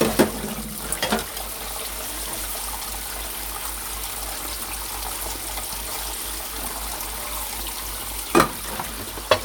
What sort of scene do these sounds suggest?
kitchen